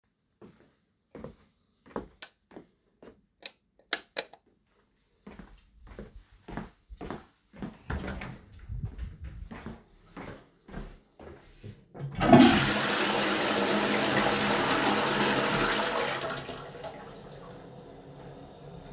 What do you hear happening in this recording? I am going to the toilet and had to switch on the lights and flushed.